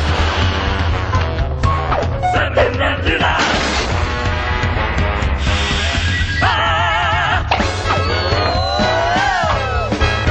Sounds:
music

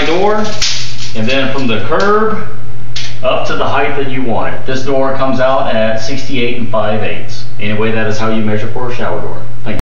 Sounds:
speech

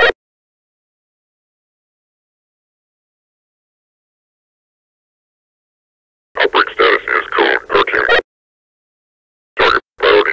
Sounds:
police radio chatter

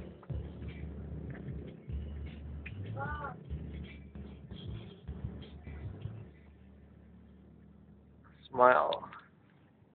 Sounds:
speech

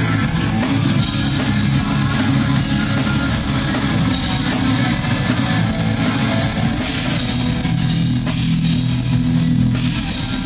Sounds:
musical instrument
rock music
music
heavy metal

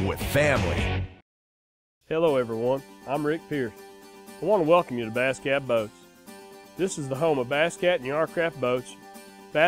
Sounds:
speech
music

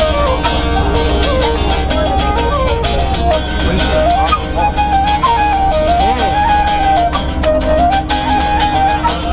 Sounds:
music
speech

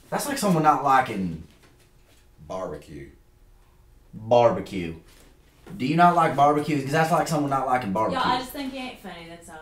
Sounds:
speech

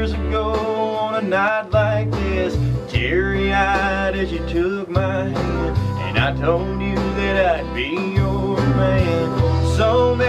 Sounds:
male singing
music

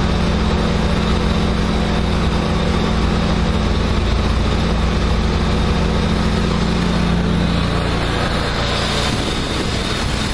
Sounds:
vehicle

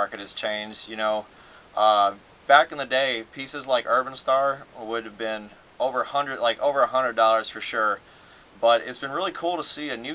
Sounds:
speech

